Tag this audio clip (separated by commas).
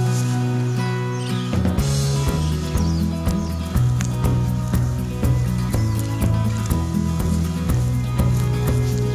Music